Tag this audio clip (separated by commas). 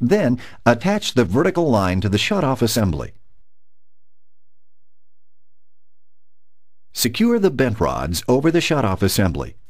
Speech